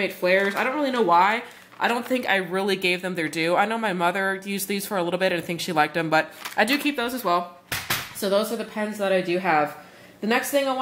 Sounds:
Speech

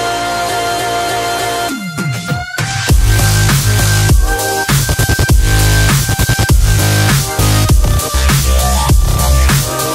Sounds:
Music

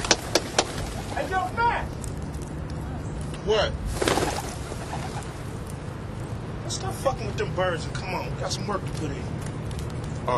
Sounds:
Speech

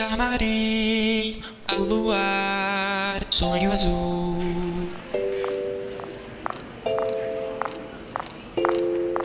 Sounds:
Speech, Music

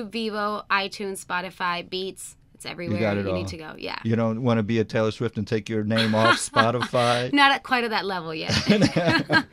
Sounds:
Speech

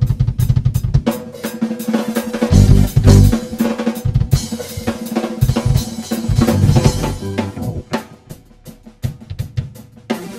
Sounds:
Rimshot, Drum roll, Drum kit, Drum, Snare drum, Percussion, Bass drum

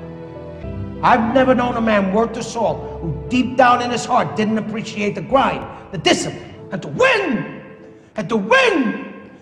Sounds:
Music, Speech

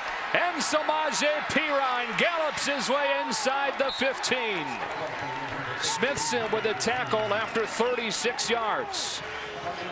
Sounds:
Speech

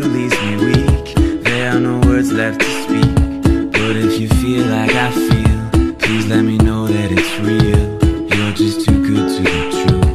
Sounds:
Music

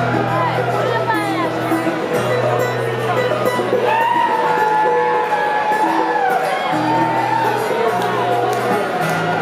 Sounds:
Speech, Music

